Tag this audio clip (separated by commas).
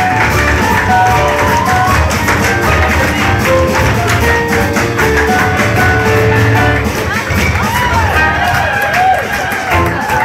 Tap, Music